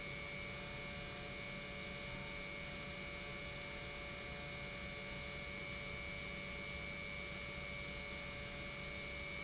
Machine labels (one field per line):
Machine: pump